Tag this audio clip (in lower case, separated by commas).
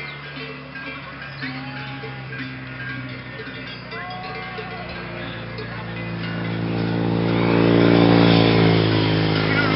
animal, sheep, motorcycle, livestock, speech